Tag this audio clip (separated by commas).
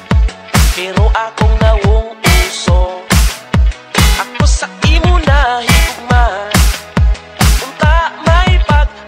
Electronic music, Music